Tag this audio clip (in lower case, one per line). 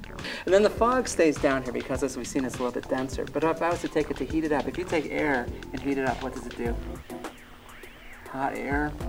speech
music